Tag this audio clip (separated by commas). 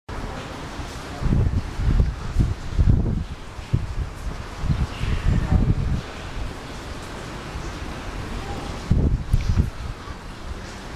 Rustling leaves, Speech